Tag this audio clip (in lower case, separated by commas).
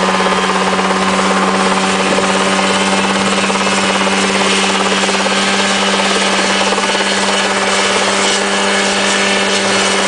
helicopter, aircraft, vehicle